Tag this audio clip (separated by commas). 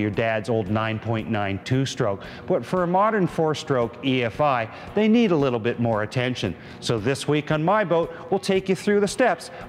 Speech, Music